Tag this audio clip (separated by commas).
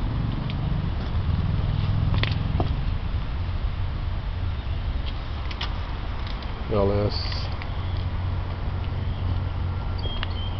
Vehicle, Speech